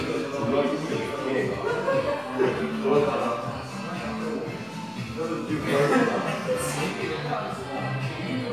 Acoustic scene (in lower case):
crowded indoor space